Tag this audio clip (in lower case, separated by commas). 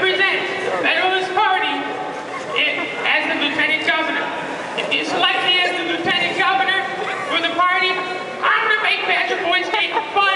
male speech, speech, monologue